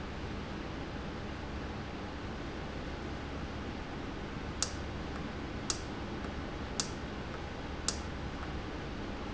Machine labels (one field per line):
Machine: valve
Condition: normal